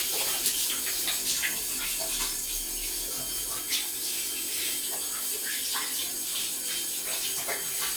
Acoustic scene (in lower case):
restroom